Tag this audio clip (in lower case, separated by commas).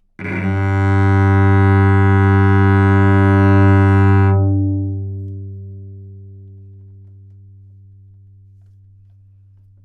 music, musical instrument, bowed string instrument